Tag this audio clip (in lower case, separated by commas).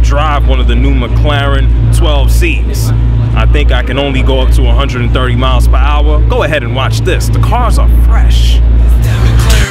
music, speech